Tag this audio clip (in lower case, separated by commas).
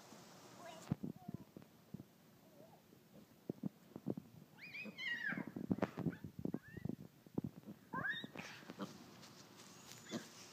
animal, pig, domestic animals